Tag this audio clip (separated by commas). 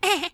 Human voice, Laughter, Chuckle